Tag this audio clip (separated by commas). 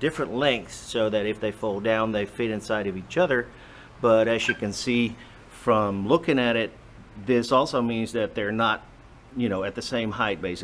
Speech